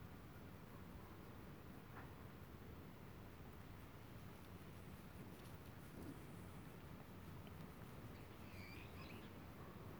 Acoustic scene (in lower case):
park